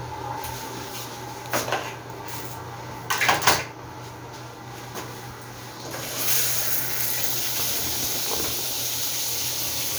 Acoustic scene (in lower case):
restroom